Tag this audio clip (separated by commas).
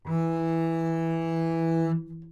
Bowed string instrument, Music, Musical instrument